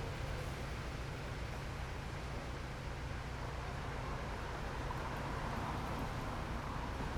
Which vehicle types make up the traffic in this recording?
bus, car